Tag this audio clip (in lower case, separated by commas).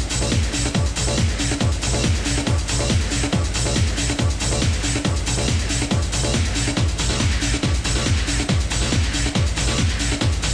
techno, music